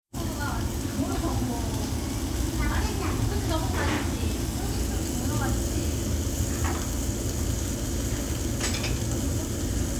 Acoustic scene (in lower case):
restaurant